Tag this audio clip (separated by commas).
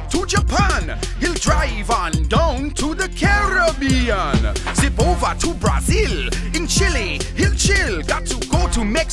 Music